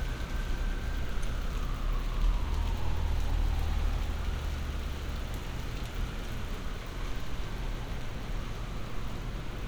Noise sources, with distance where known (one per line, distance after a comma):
engine of unclear size
siren, far